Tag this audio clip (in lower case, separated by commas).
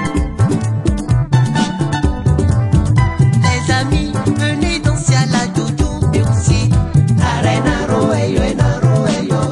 dance music, traditional music, folk music, music